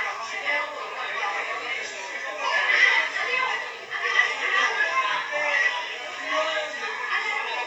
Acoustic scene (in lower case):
crowded indoor space